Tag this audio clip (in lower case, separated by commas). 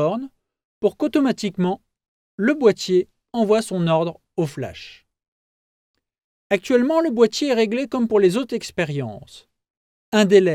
speech